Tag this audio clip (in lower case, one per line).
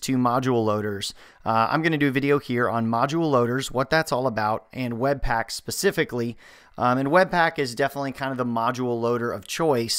speech